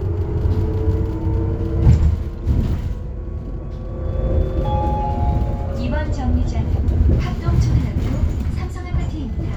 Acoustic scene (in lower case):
bus